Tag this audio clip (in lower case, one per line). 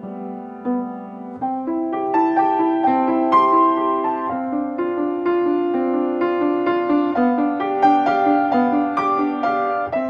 music